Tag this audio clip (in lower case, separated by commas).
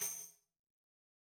tambourine, percussion, music, musical instrument